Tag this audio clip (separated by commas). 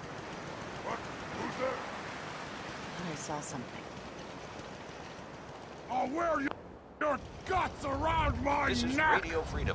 Speech